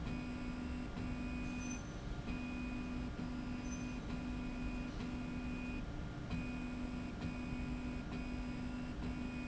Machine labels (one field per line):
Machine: slide rail